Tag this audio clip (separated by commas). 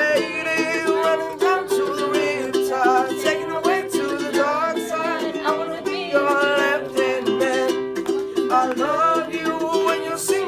playing ukulele